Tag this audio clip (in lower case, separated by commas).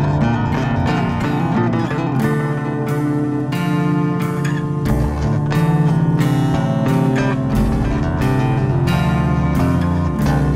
cello, bowed string instrument, pizzicato